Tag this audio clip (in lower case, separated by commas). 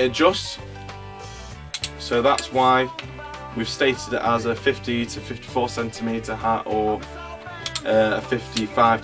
music, speech